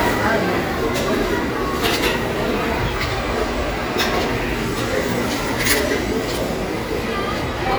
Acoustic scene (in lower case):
crowded indoor space